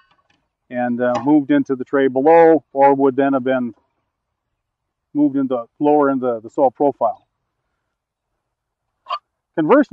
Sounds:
Speech, outside, rural or natural

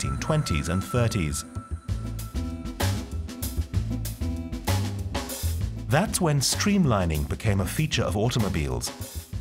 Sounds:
Music, Speech

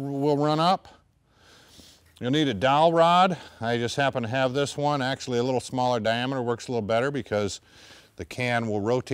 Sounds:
Speech

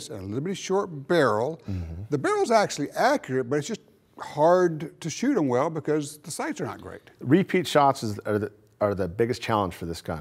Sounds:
Speech

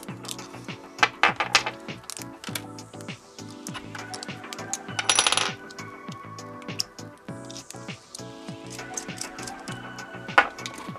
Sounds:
cap gun shooting

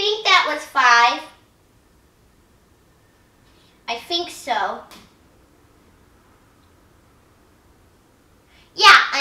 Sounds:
Speech, kid speaking, inside a small room

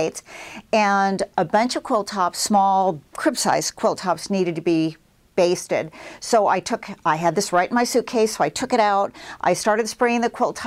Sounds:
Speech

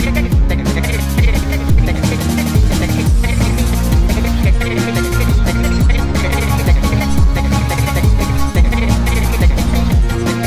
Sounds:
Musical instrument, Music

